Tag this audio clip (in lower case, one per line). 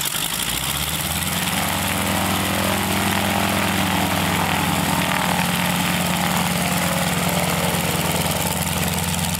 heavy engine (low frequency)